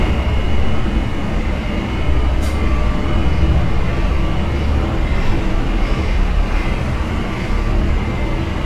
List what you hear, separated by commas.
engine of unclear size